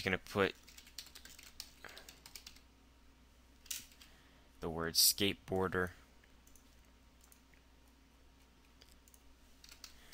Man talking and typing